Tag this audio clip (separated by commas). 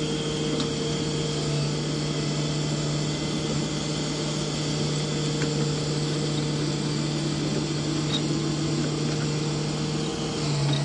Vehicle